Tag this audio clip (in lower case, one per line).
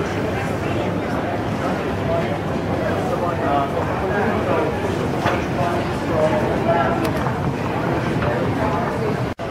speech